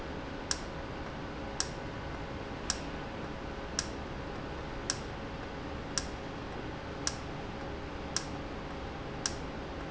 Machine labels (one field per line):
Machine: valve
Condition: normal